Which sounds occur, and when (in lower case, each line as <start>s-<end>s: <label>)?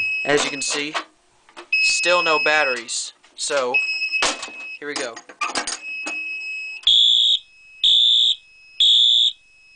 0.0s-0.7s: alarm
0.0s-9.7s: background noise
0.2s-1.0s: man speaking
0.3s-0.5s: generic impact sounds
0.7s-1.0s: generic impact sounds
1.5s-1.6s: generic impact sounds
1.7s-2.8s: alarm
2.0s-3.1s: man speaking
2.7s-3.1s: generic impact sounds
3.4s-3.7s: generic impact sounds
3.5s-3.8s: man speaking
3.7s-4.8s: alarm
4.2s-4.6s: generic impact sounds
4.8s-5.2s: man speaking
4.8s-5.7s: generic impact sounds
5.7s-6.7s: alarm
6.0s-6.1s: generic impact sounds
6.8s-7.3s: fire alarm
7.3s-7.8s: alarm
7.8s-8.3s: fire alarm
8.3s-8.8s: alarm
8.7s-9.3s: fire alarm
9.3s-9.7s: alarm